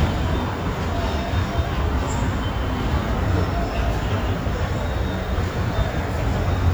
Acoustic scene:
subway station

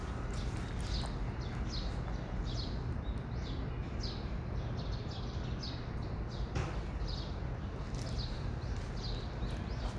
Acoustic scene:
park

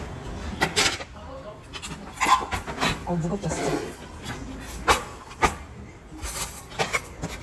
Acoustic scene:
restaurant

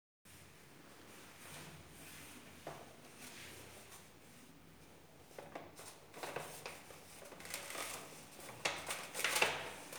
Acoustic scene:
elevator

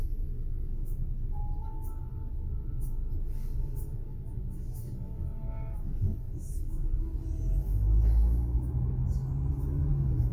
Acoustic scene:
car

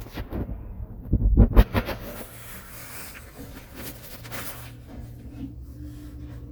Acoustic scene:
elevator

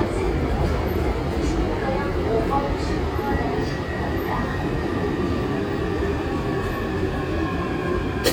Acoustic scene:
subway train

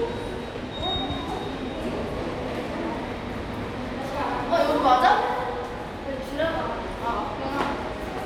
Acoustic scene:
subway station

